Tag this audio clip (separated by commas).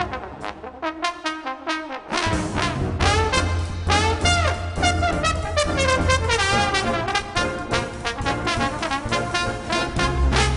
playing trombone